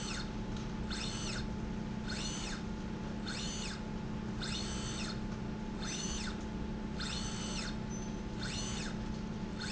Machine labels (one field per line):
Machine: slide rail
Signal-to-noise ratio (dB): -6 dB